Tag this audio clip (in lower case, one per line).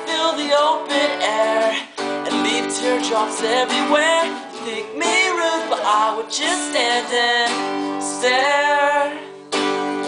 music